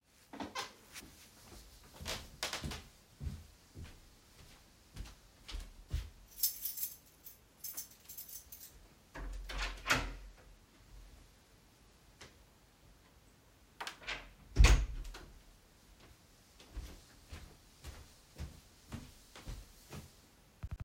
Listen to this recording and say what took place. I walked down the hallway toward the front door. I reached into my pocket and pulled out my keys producing a jingling sound. I unlocked and opened the door then closed it behind me before walking back inside.